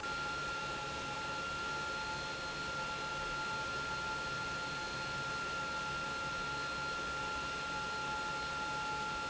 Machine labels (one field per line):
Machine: pump